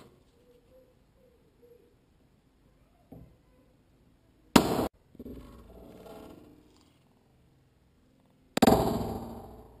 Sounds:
inside a large room or hall

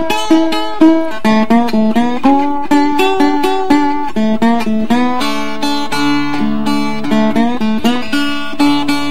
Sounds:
Acoustic guitar, Strum, Musical instrument, Music, Plucked string instrument, Guitar

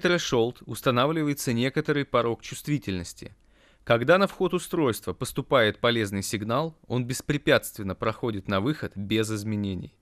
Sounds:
Speech

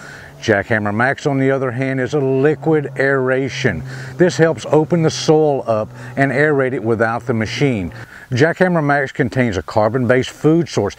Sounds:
Speech

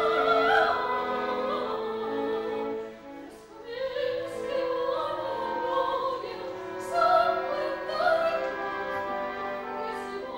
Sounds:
Music, Opera, Classical music

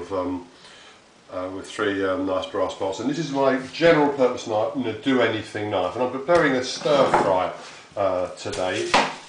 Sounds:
Speech

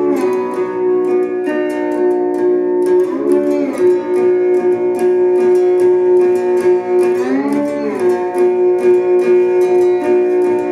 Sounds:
slide guitar

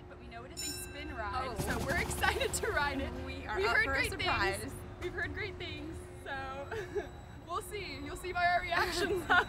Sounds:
Speech

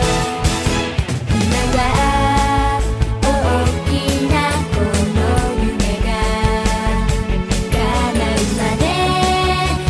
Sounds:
Song

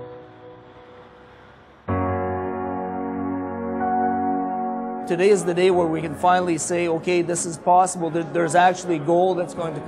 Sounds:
Music, Speech

